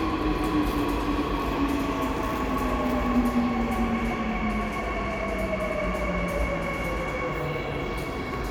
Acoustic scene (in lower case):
subway station